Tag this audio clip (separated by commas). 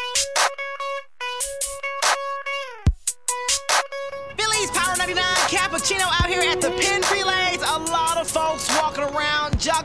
Music